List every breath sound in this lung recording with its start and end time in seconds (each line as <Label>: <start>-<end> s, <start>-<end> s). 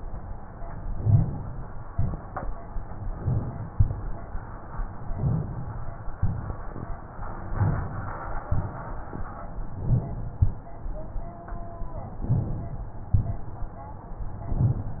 Inhalation: 0.83-1.57 s, 3.04-3.70 s, 5.09-5.75 s, 7.49-8.15 s, 9.67-10.34 s, 12.14-12.80 s
Exhalation: 1.90-2.50 s, 3.72-4.39 s, 6.16-6.82 s, 8.44-9.10 s, 10.36-11.02 s, 13.09-13.76 s